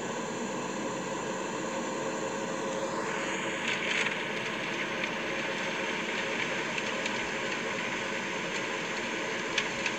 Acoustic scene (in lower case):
car